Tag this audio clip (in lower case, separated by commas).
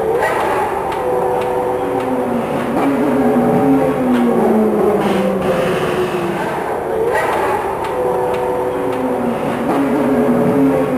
auto racing, vehicle